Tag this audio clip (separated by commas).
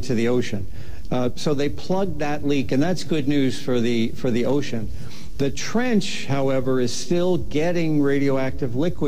Speech